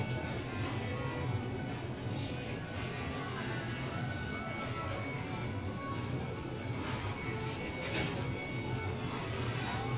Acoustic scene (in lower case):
crowded indoor space